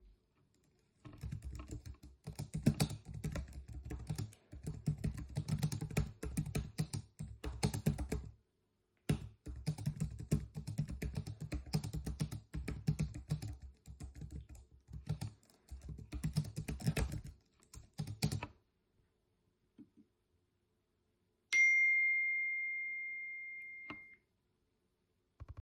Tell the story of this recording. The phone was placed statically on a desk in an office room. Typing on a computer keyboard was performed for most of the recording. After the typing stopped an iPhone notification sound was received.